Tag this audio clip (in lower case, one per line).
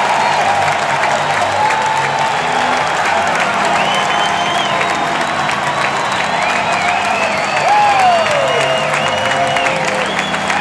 music
speech